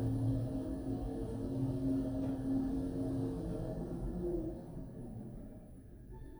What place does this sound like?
elevator